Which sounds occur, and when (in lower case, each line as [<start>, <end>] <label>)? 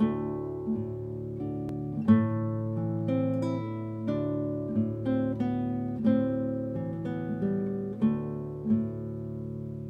[0.00, 9.85] music